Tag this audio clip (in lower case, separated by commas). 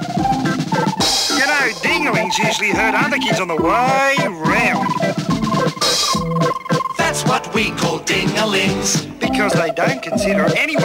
music, speech